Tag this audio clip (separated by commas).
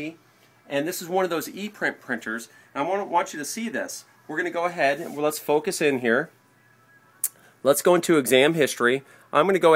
Speech